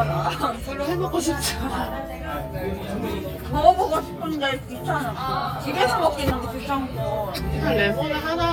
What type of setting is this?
crowded indoor space